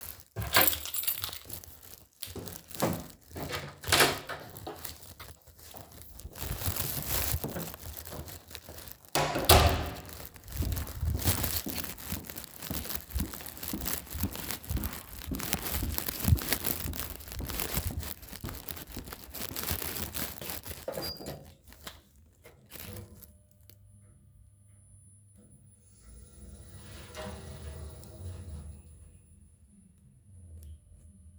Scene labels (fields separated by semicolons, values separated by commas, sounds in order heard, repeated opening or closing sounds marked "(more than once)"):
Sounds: keys, door (more than once), footsteps